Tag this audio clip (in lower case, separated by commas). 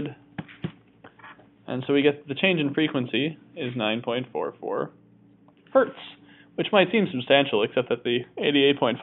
speech, inside a small room